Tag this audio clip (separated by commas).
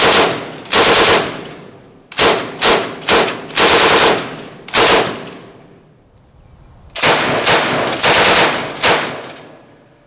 machine gun shooting